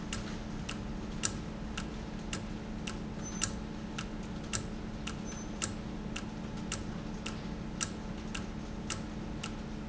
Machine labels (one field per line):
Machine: valve